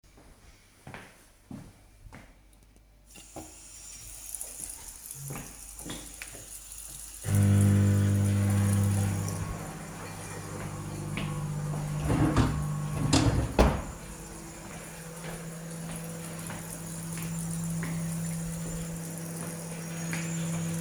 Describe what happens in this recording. I went to the sink and turned on the water. Then I turned on the microwave, went to the drawer, opened it, and closed it.